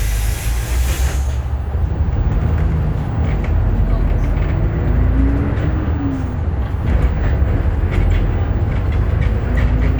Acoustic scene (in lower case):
bus